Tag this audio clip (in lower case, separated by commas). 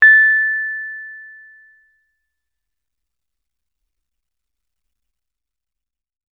music, keyboard (musical), piano, musical instrument